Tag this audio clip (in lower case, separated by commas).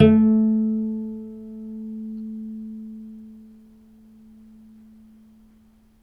musical instrument, bowed string instrument, music